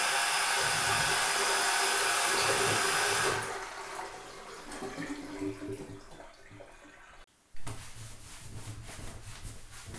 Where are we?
in a restroom